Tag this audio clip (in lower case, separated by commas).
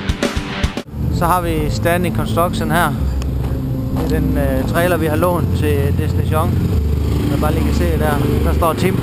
speech, music, vehicle